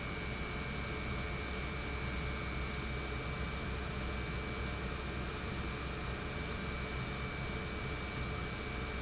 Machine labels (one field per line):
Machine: pump